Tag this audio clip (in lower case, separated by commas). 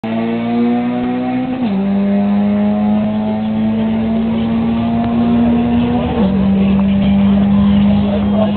vehicle, car